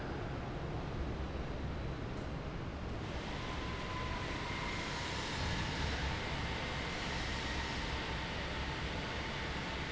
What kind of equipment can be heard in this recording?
fan